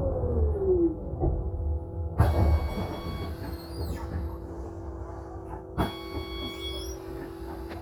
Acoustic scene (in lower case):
bus